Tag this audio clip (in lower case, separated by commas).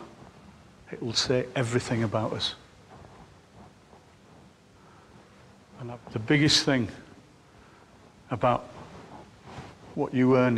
narration, speech, male speech